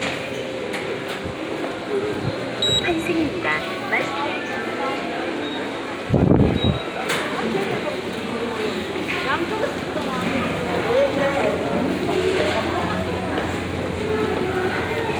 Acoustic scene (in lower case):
subway station